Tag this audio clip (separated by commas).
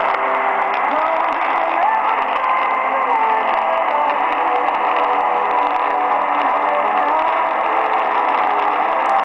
Music, Radio